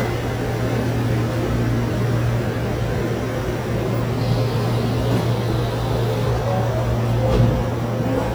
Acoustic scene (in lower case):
subway station